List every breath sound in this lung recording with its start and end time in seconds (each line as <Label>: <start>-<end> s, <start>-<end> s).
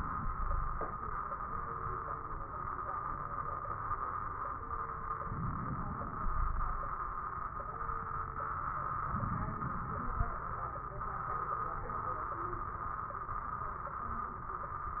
Inhalation: 5.25-6.25 s, 9.10-10.49 s
Exhalation: 0.24-0.90 s, 6.24-7.03 s
Wheeze: 0.24-0.90 s, 6.24-7.03 s
Crackles: 5.25-6.25 s, 9.10-10.49 s